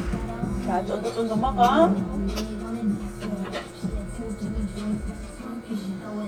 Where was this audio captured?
in a restaurant